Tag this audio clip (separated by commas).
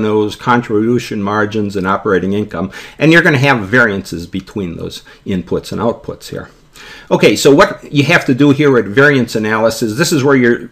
Speech